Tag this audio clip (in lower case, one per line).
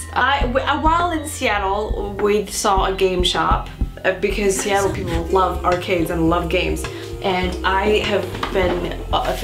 speech
music
inside a large room or hall